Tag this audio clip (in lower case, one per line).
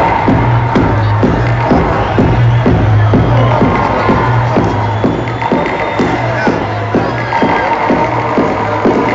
music
cheering